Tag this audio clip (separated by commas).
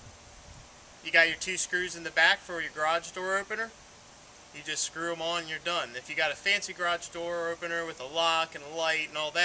Speech